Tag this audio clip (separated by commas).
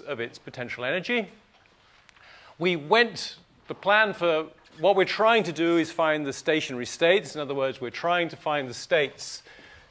Speech